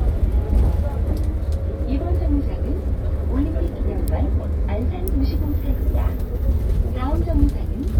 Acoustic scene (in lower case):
bus